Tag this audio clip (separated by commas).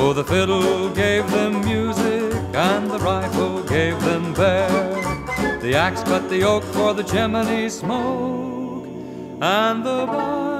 Music, Musical instrument, Violin